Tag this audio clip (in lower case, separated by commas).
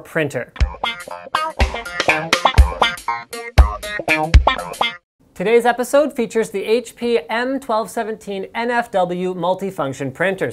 music, speech